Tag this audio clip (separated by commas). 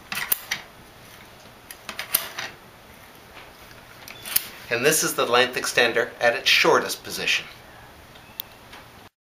Speech